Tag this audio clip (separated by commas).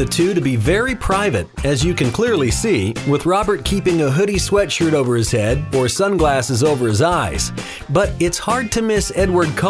Speech, Music